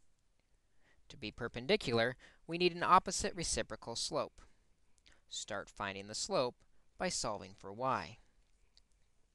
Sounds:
speech

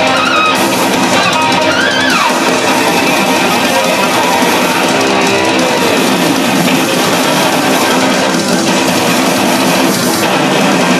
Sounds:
music
theme music

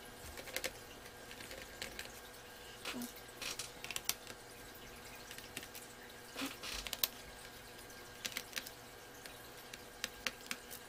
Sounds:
inside a small room

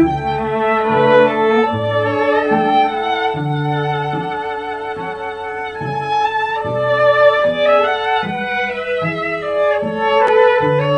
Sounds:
music

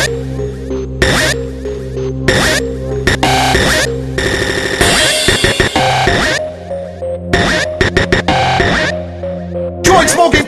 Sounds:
music

